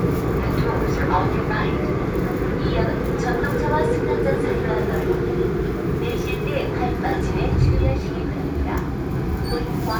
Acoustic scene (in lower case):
subway train